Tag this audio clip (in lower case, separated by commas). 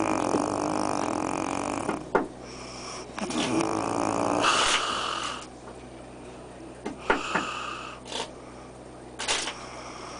snoring